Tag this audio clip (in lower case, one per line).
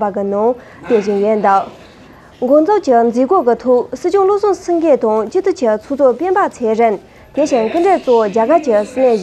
speech